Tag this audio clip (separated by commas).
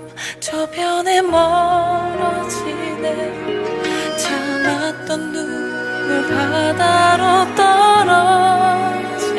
Music